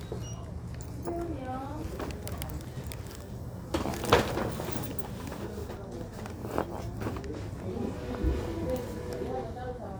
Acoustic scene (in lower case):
crowded indoor space